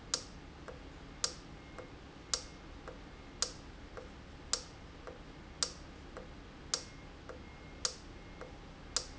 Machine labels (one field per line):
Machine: valve